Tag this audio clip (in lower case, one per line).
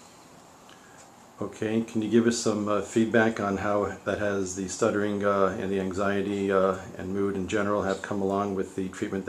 speech